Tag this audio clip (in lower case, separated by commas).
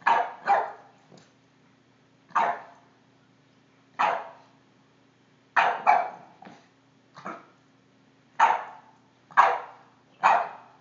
animal, pets, dog, dog barking, bark